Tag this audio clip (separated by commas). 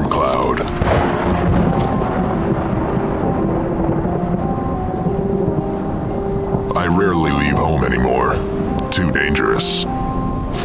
Music, outside, rural or natural, Speech